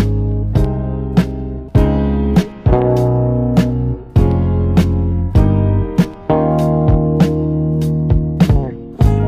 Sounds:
music

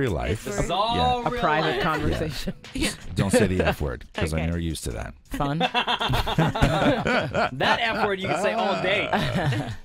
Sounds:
music, speech

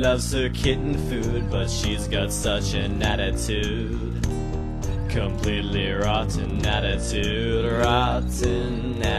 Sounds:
music

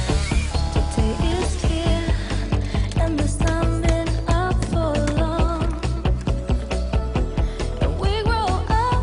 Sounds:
chainsaw, music

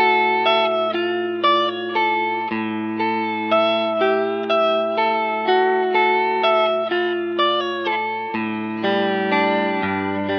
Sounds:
music, slide guitar

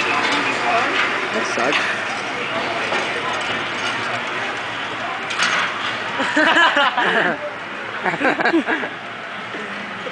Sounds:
vehicle, speech

